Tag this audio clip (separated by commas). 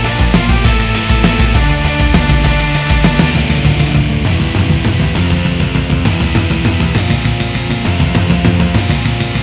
Guitar, Electric guitar, Music, Musical instrument